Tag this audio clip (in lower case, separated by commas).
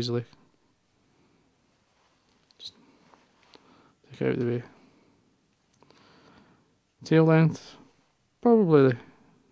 speech